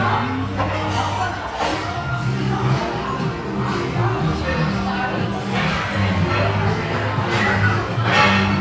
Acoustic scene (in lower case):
restaurant